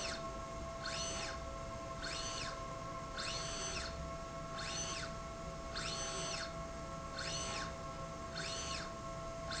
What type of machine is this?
slide rail